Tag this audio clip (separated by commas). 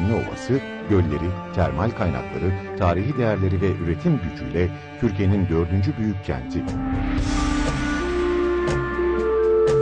Speech, Music